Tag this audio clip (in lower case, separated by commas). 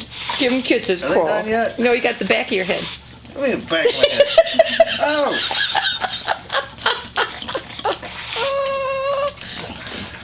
speech, dog, pets, animal